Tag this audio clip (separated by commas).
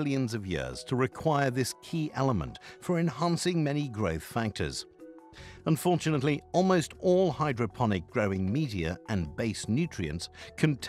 Speech